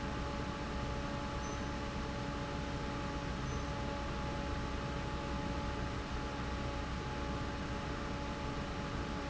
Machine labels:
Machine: fan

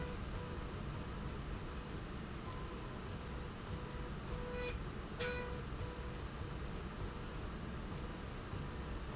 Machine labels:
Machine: slide rail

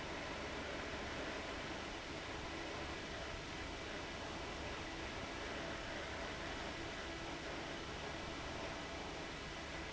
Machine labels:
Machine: fan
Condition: abnormal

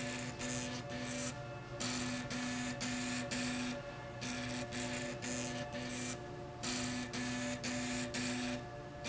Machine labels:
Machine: slide rail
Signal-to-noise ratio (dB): 0 dB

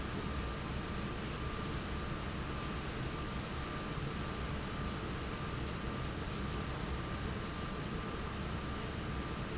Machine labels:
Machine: fan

